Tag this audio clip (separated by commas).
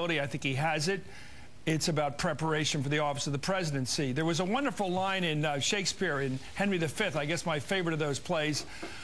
monologue, man speaking, Speech